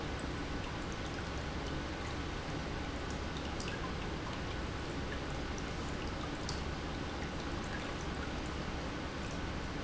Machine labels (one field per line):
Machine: pump